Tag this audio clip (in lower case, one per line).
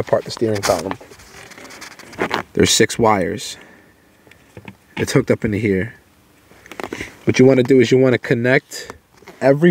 speech